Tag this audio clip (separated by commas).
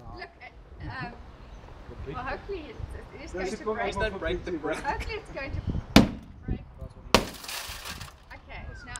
crash, thwack